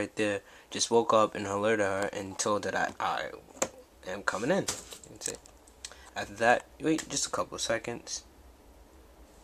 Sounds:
inside a small room, Speech

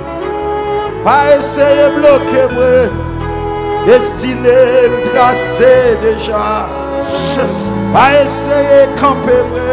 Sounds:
Music

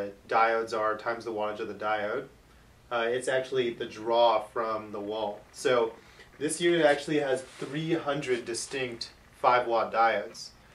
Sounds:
Speech

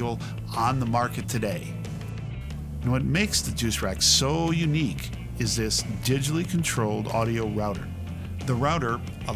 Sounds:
Speech, Music

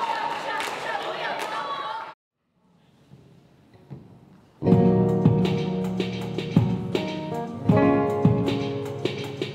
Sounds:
Music, Speech

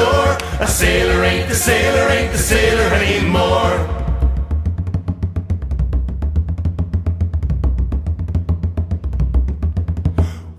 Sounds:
Music

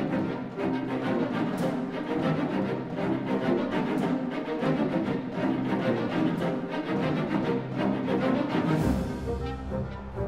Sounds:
Music

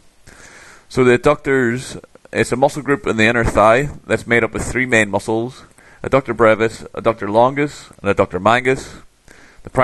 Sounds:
Speech

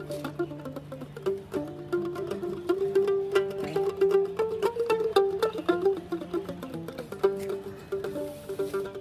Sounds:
Mandolin, Music

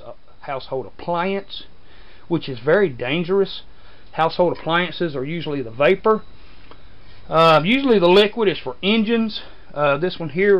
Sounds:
Speech

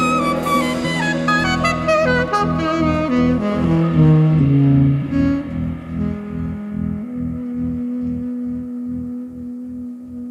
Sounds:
Plucked string instrument, Guitar, Musical instrument, Saxophone, Music, Piano

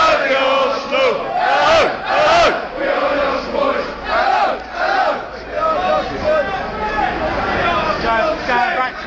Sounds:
Speech

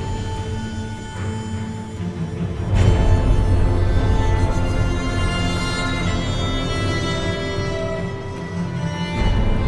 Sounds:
Music

